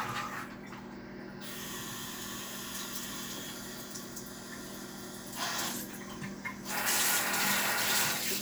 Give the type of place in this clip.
restroom